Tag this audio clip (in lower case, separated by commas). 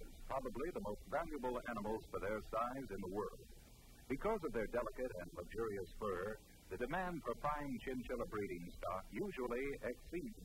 speech